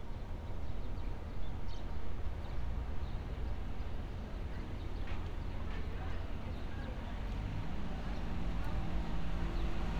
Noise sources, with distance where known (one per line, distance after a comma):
person or small group talking, far